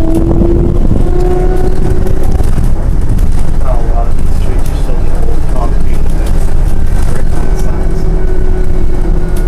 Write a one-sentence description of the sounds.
An engine hums, people speak